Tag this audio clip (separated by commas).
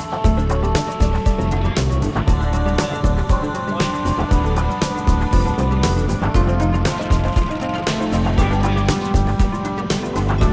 Music, Speech